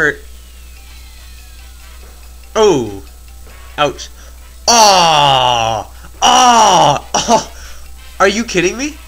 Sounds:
Speech, Music

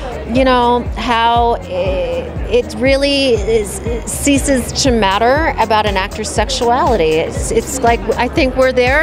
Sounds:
Music, Speech

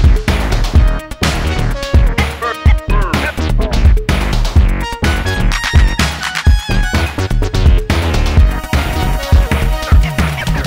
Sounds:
Music

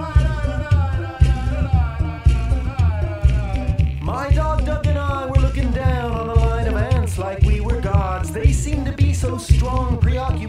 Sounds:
Music

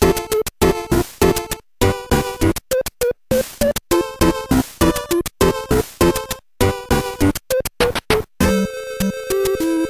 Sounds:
Music, Video game music

